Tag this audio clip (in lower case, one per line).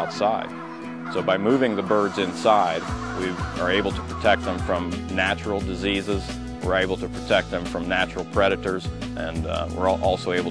speech
animal
music